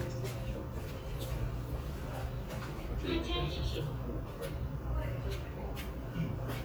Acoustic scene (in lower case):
crowded indoor space